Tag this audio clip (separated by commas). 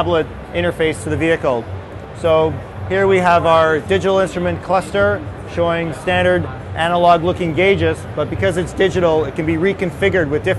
Speech